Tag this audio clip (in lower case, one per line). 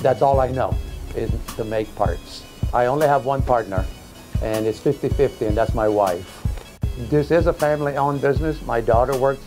music
speech